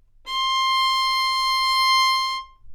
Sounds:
Music, Musical instrument, Bowed string instrument

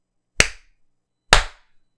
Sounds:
Hands, Clapping

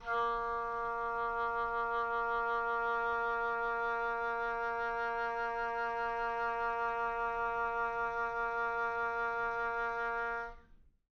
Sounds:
woodwind instrument, Musical instrument, Music

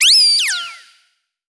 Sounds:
Animal

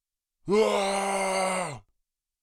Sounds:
Human voice, Shout

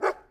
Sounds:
Dog, Animal, Domestic animals, Bark

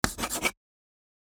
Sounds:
Writing, Domestic sounds

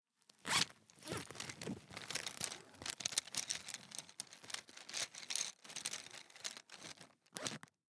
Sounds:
Zipper (clothing), home sounds

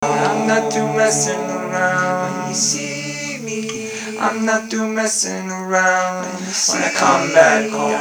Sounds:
Human voice

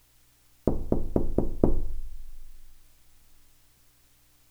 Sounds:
Door, Knock, Domestic sounds

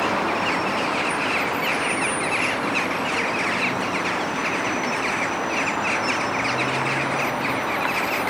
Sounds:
Animal, Wild animals, Bird

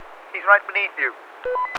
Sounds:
Human voice, Male speech, Speech

